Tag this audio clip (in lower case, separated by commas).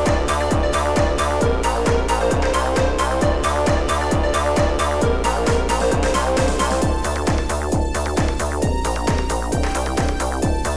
music, exciting music